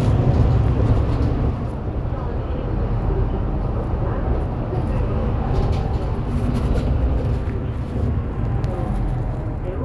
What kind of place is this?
bus